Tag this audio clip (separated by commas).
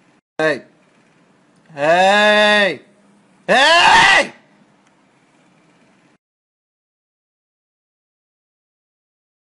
Speech